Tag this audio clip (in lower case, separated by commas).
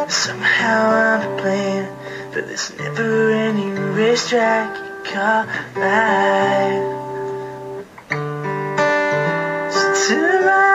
music, male singing